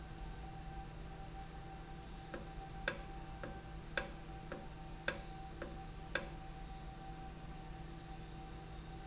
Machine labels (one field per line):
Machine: valve